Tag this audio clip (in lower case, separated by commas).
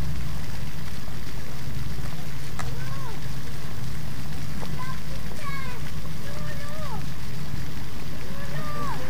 speech